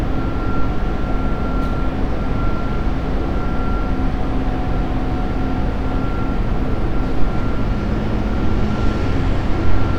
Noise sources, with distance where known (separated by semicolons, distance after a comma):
large-sounding engine, near; unidentified alert signal, near